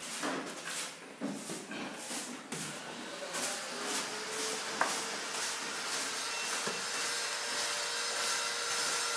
Sweeping and power tool running